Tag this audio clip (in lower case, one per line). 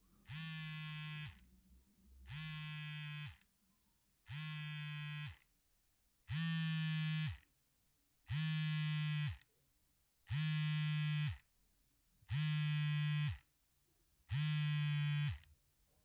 telephone
alarm